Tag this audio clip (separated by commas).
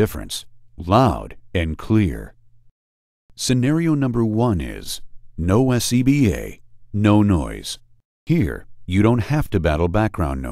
Speech